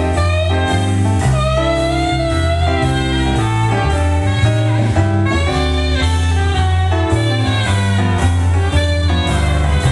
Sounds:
music, blues

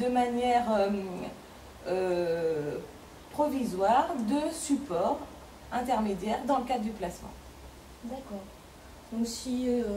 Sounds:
speech, female speech

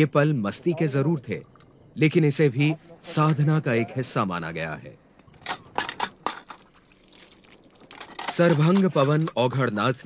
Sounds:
speech, outside, rural or natural

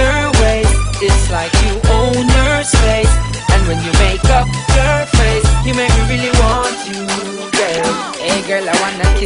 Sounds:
music

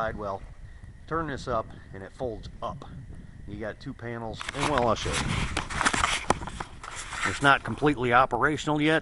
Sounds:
speech

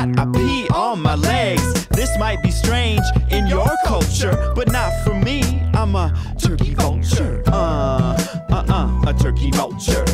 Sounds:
music

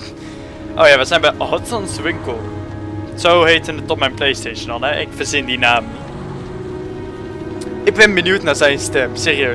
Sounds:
speech, music

